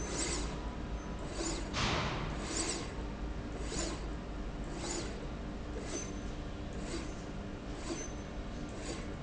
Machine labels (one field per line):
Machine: slide rail